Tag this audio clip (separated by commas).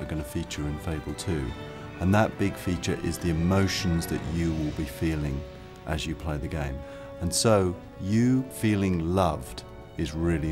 Music, Speech